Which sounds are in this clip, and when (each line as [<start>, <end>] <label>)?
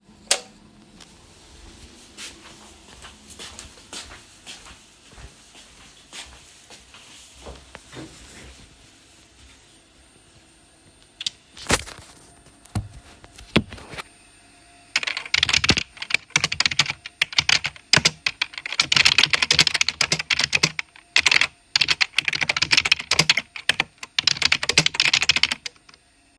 [0.22, 0.59] light switch
[2.10, 8.02] footsteps
[14.88, 25.77] keyboard typing